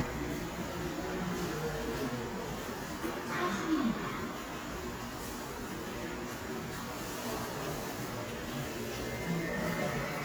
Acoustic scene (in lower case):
subway station